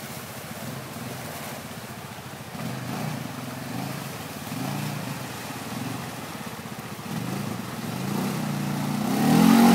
Water rushing and engine revs